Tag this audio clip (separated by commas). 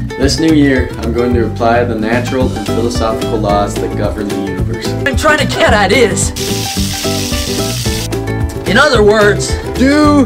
Speech, Music, inside a small room